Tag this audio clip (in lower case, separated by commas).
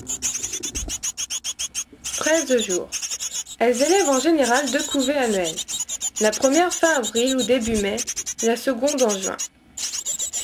black capped chickadee calling